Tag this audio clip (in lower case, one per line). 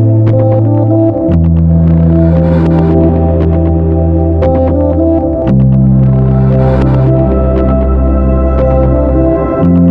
music